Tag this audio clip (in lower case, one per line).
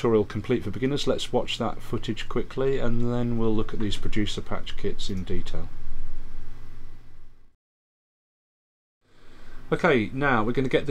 speech